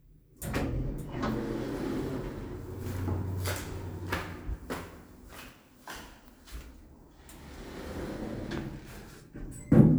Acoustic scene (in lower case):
elevator